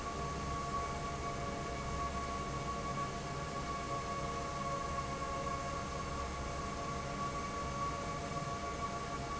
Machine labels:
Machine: fan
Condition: normal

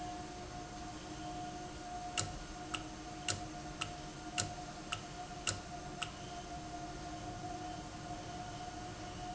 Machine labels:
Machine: valve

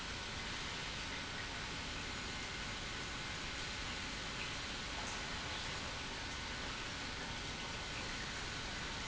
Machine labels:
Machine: pump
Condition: normal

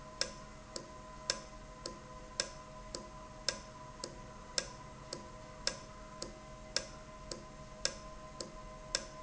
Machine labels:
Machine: valve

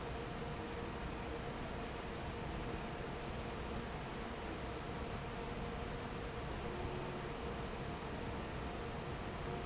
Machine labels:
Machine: fan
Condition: normal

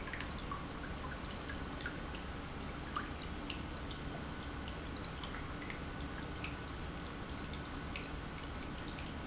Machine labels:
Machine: pump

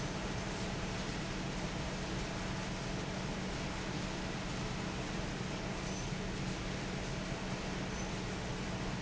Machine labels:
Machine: fan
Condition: normal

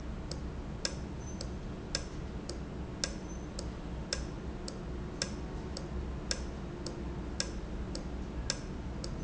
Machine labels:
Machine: valve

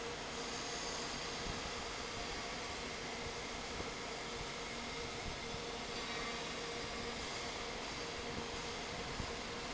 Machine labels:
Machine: fan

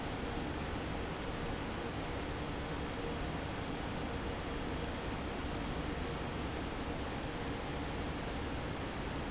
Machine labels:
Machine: fan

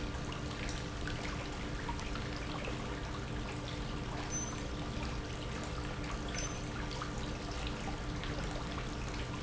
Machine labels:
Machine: pump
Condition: normal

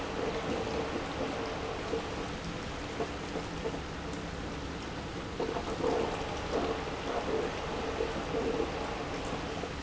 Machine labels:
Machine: pump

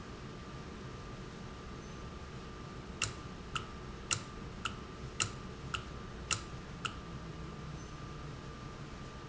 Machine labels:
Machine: valve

